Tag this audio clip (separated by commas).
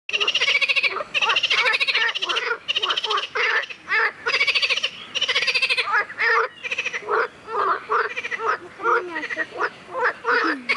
frog croaking